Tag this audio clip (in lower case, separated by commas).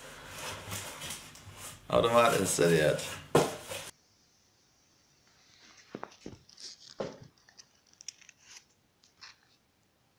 playing darts